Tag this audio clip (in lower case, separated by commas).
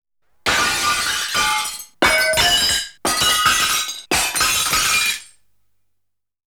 shatter, glass